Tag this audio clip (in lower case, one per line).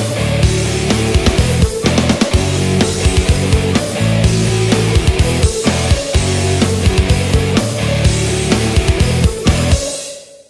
music
musical instrument
progressive rock